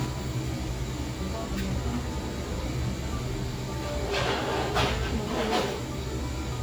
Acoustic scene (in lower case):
cafe